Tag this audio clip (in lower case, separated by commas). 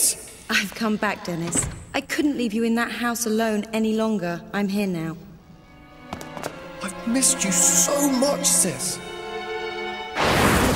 music, speech